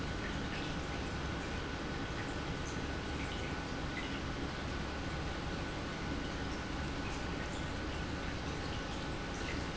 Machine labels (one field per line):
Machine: pump